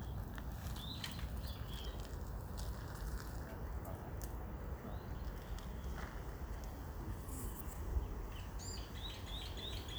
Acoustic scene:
park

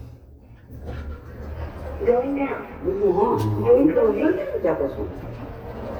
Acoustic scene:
elevator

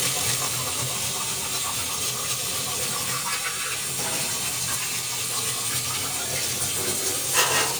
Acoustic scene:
kitchen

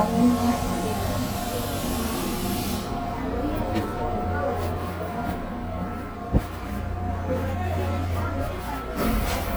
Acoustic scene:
subway train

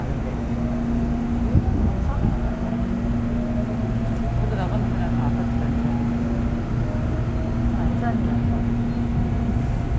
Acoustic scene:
subway train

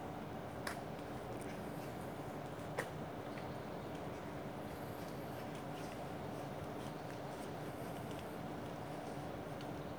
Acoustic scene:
park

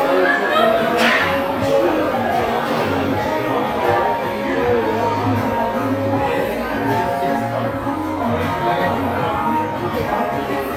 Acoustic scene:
crowded indoor space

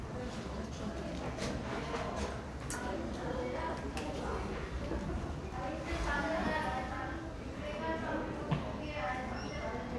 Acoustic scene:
crowded indoor space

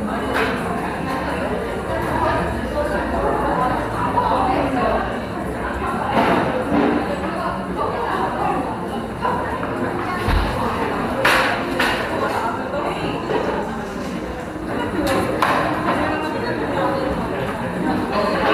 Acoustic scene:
cafe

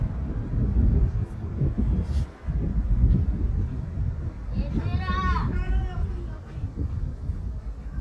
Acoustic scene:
residential area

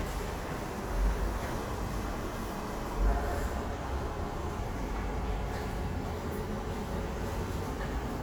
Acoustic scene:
subway station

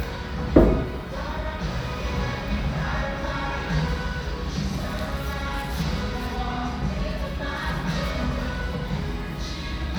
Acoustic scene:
restaurant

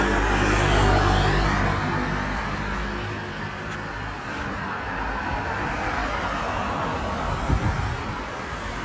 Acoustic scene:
street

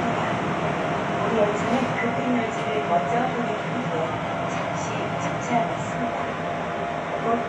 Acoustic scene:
subway train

